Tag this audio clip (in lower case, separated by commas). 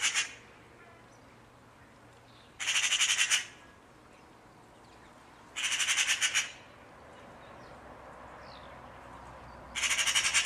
magpie calling